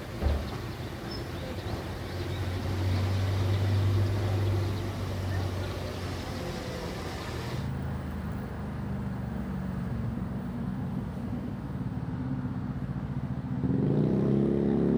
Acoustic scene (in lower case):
residential area